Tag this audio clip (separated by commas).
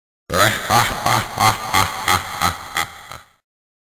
Sound effect